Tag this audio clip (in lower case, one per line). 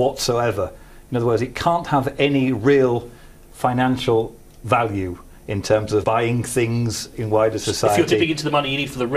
speech